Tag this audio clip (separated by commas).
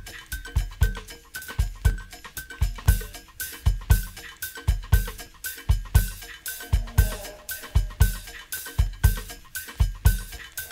Music